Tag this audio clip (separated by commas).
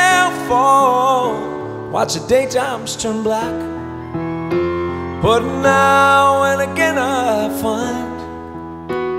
Music